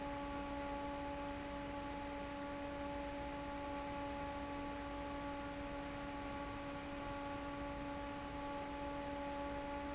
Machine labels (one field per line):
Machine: fan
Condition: normal